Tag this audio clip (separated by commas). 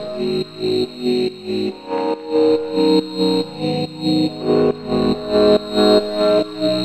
Piano, Music, Keyboard (musical), Musical instrument